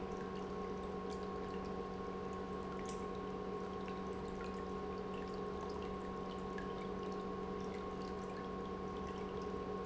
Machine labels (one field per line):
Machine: pump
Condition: normal